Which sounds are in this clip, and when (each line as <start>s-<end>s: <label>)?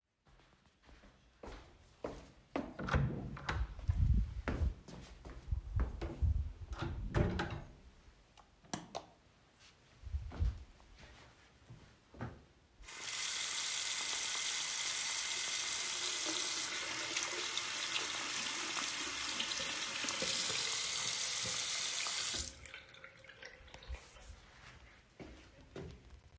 1.4s-2.8s: footsteps
2.7s-3.8s: door
4.4s-6.5s: footsteps
6.7s-7.8s: door
8.7s-9.1s: light switch
10.0s-12.4s: footsteps
12.8s-24.4s: running water
25.0s-26.1s: footsteps